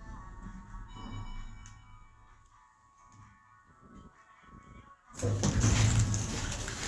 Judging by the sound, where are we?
in an elevator